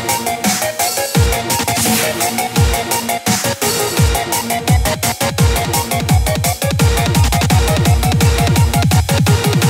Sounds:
Music

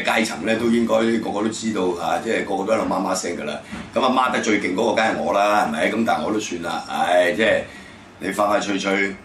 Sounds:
Speech

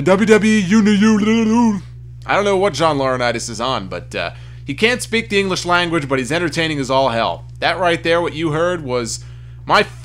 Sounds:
Speech

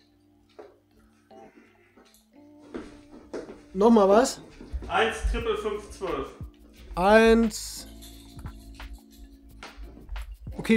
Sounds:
playing darts

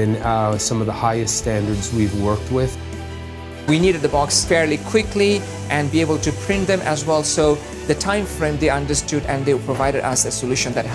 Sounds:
Music, Speech

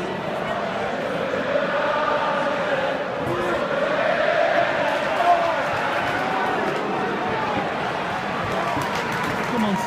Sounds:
Speech

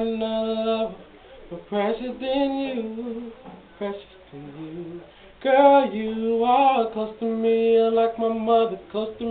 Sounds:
Male singing

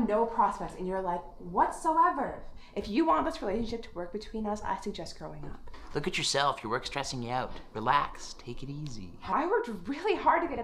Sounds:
Speech

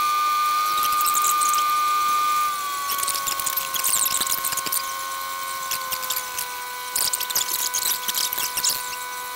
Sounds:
Vehicle, outside, rural or natural

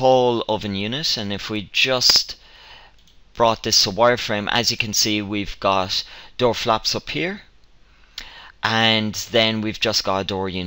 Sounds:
Speech

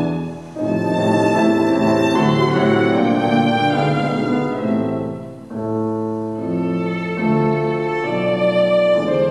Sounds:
Music, fiddle, Musical instrument

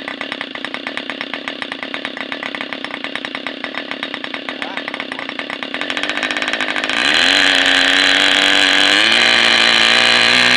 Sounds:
Engine, Medium engine (mid frequency), Idling, Speech

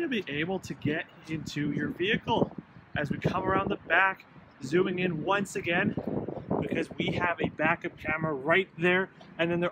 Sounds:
Speech

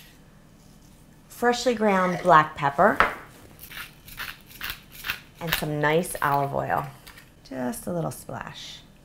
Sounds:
inside a small room, Speech

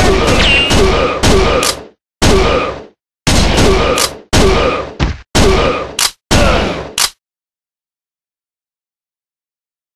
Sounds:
outside, urban or man-made

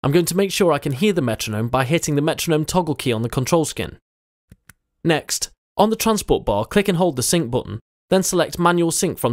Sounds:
Speech

